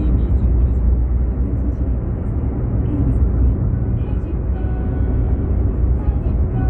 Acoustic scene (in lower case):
car